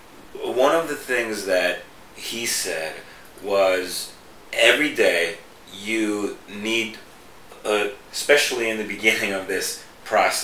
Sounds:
Speech

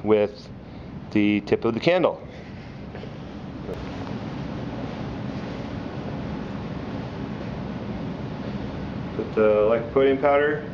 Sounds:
Speech

